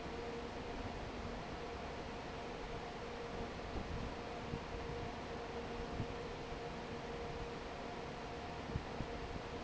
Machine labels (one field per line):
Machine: fan